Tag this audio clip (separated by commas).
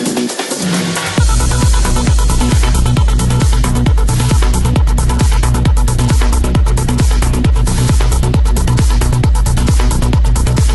Music